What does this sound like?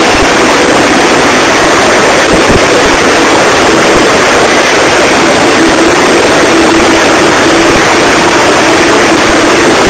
Sound of a vehicle and a helicopter